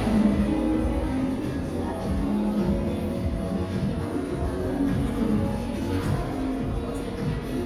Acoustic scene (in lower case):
crowded indoor space